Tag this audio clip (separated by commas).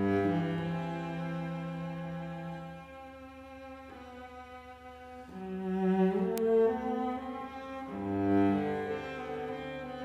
playing cello